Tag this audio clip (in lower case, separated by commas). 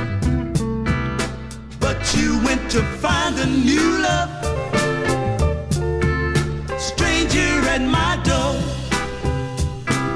music